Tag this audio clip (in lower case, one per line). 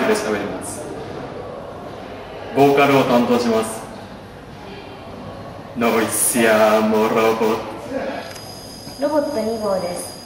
speech